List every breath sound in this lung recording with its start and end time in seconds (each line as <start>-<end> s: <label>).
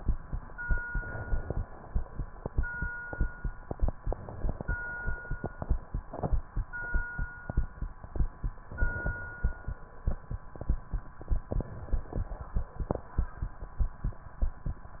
0.82-1.68 s: inhalation
0.82-1.68 s: crackles
3.90-4.76 s: inhalation
3.90-4.76 s: crackles
8.65-9.49 s: inhalation
8.65-9.49 s: crackles
11.47-12.31 s: inhalation
11.47-12.31 s: crackles